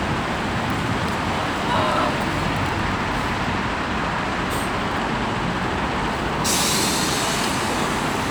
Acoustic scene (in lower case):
street